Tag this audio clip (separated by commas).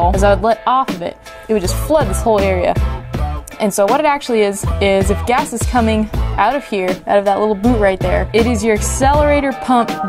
Music, Speech